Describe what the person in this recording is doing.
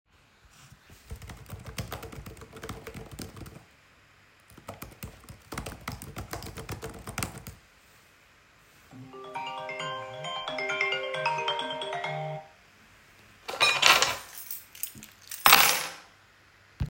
I was sitting at my working desk and started typing on a laptop keyboard. While typing a phone began ringing in the room. After the phone ringI picked up a keychain moved it and placed it on the table